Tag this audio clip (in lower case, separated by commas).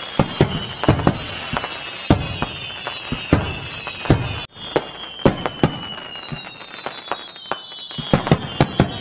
lighting firecrackers